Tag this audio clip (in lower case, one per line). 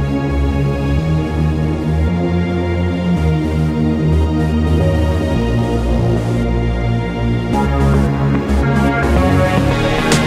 music